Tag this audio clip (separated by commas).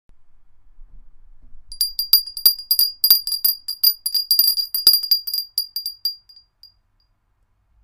Bell